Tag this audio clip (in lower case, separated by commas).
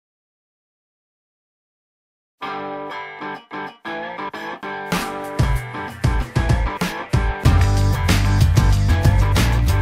music